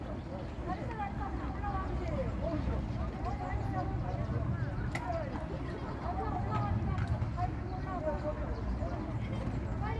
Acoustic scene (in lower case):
park